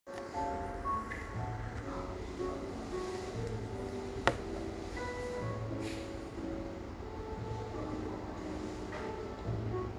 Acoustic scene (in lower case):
cafe